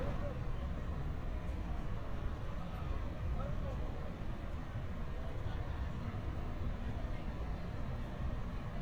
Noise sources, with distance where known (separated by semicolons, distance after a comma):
person or small group talking, far